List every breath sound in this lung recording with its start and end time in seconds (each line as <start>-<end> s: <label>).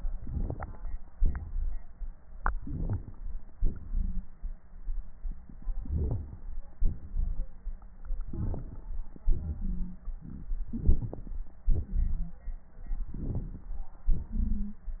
0.17-0.95 s: inhalation
0.17-0.95 s: crackles
1.18-1.94 s: exhalation
2.54-3.30 s: inhalation
2.54-3.30 s: crackles
3.59-4.44 s: exhalation
3.91-4.26 s: wheeze
5.77-6.52 s: inhalation
5.77-6.52 s: crackles
6.83-7.51 s: exhalation
6.83-7.51 s: crackles
8.26-8.97 s: inhalation
8.26-8.97 s: crackles
9.24-10.11 s: exhalation
9.60-10.00 s: wheeze
10.71-11.46 s: inhalation
10.71-11.46 s: crackles
11.70-12.33 s: wheeze
11.72-12.33 s: exhalation
13.16-13.77 s: inhalation
13.16-13.77 s: crackles
14.07-14.87 s: exhalation
14.29-14.77 s: wheeze